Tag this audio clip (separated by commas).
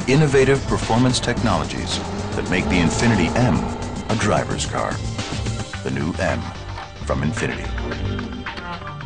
Music, Speech, Vehicle, Car